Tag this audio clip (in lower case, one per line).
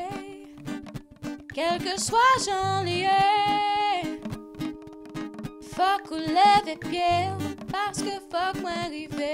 music